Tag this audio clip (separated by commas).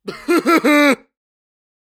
Human voice, Laughter